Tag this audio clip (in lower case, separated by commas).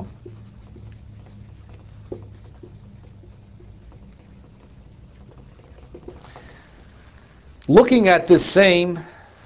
speech